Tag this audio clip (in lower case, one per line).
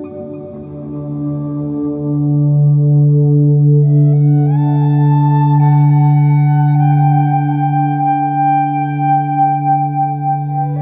music
tender music